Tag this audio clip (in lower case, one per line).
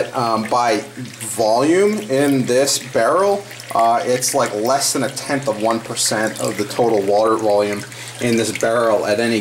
speech
drip